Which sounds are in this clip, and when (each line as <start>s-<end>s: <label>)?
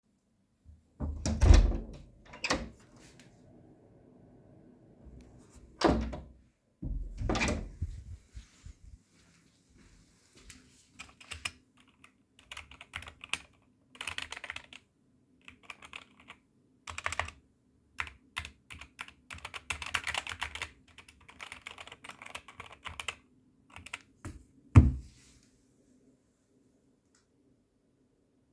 0.7s-3.3s: door
5.5s-8.9s: door
10.4s-24.6s: keyboard typing